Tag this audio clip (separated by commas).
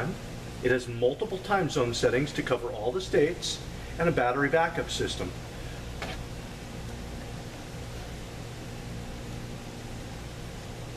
Speech